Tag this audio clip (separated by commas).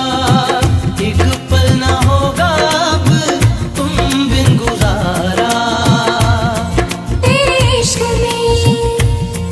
Music, Music of Bollywood